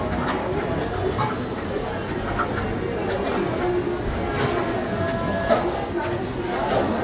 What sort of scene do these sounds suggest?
restaurant